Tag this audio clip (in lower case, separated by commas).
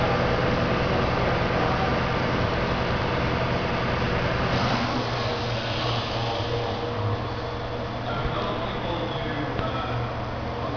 vehicle, speech